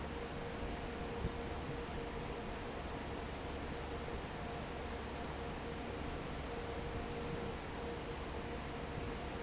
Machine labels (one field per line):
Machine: fan